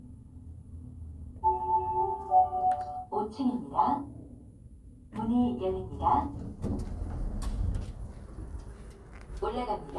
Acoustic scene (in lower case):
elevator